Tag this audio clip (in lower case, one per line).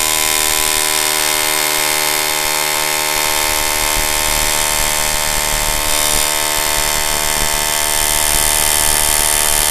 power tool
tools
drill